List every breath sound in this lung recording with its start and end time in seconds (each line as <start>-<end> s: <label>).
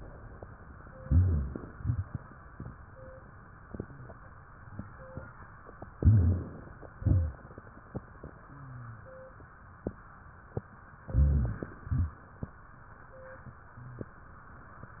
1.03-1.56 s: rhonchi
1.04-1.73 s: inhalation
1.73-2.11 s: exhalation
1.73-2.11 s: rhonchi
5.98-6.51 s: rhonchi
5.98-6.70 s: inhalation
6.98-7.38 s: exhalation
6.98-7.38 s: rhonchi
11.08-11.71 s: inhalation
11.08-11.71 s: rhonchi
11.86-12.20 s: exhalation
11.86-12.20 s: rhonchi